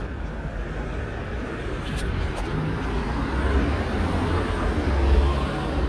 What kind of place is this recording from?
street